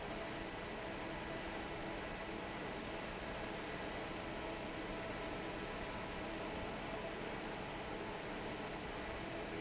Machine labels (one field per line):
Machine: fan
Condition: normal